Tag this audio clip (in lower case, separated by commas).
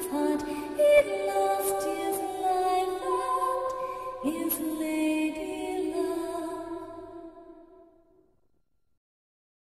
music, lullaby